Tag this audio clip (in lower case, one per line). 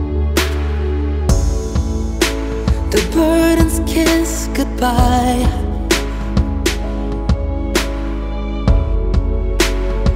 music